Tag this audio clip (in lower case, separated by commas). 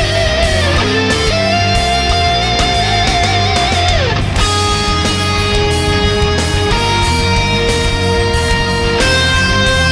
music